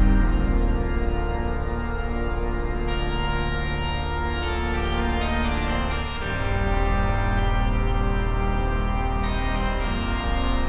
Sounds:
playing electronic organ

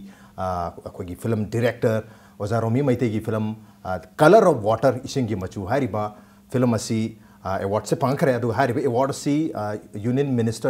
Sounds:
Speech

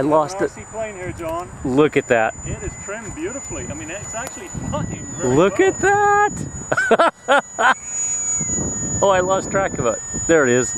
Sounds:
Speech

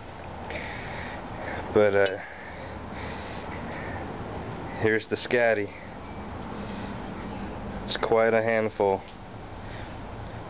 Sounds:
Speech

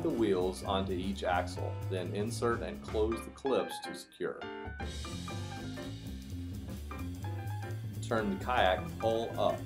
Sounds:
Music, Speech

